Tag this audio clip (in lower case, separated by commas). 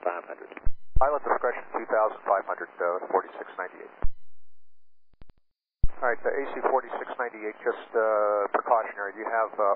speech